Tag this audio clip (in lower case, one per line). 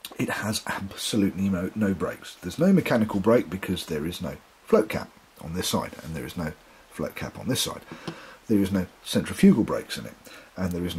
speech